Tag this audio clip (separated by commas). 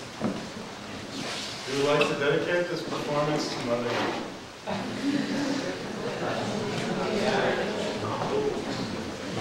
Speech, Music